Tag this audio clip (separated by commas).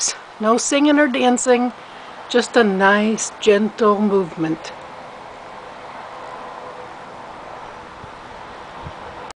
Speech